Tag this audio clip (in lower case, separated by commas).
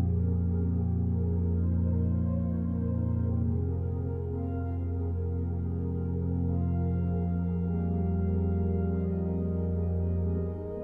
hammond organ, organ